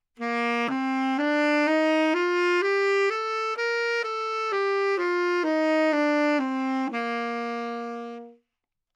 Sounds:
musical instrument, wind instrument, music

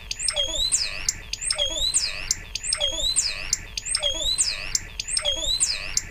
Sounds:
bird, wild animals, animal

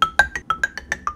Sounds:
musical instrument, percussion, mallet percussion, marimba, music

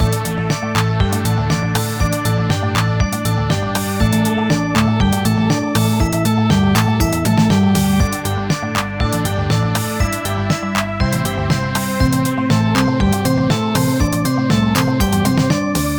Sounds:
organ, music, musical instrument, keyboard (musical)

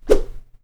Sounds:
swish

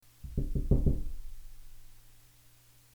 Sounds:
door, home sounds, wood, knock

